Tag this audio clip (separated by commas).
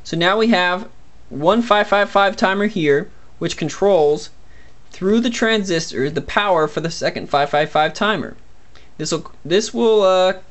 Speech